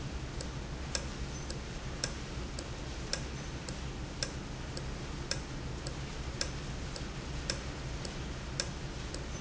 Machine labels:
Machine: valve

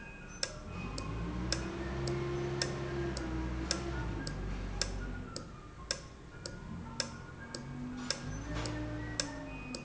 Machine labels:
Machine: valve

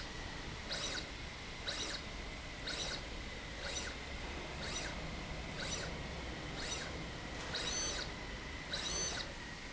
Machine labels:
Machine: slide rail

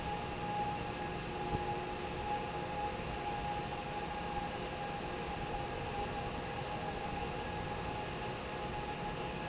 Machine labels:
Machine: fan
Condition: normal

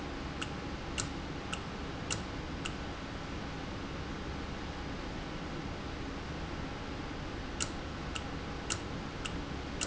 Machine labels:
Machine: valve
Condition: normal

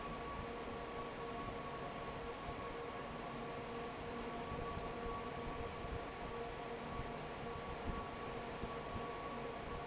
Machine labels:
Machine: fan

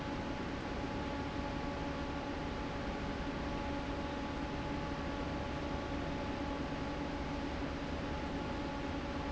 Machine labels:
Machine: fan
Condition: normal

